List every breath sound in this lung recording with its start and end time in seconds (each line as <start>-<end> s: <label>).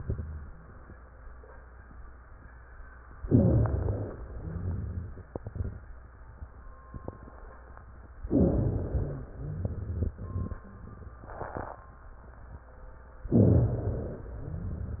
3.25-4.14 s: inhalation
3.25-4.14 s: rhonchi
4.25-5.29 s: exhalation
4.25-5.29 s: rhonchi
8.33-9.22 s: inhalation
8.33-9.22 s: wheeze
9.37-10.27 s: exhalation
9.37-10.27 s: rhonchi
13.34-14.23 s: inhalation
13.34-14.23 s: rhonchi